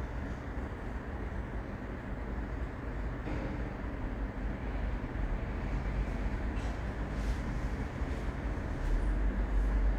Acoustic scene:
elevator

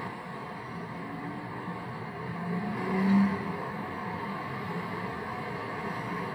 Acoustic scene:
street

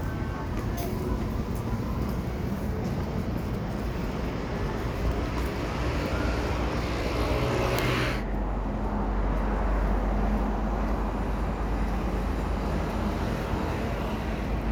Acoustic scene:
street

